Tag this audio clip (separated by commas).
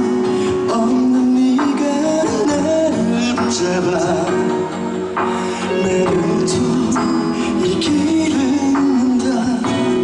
Music, Male singing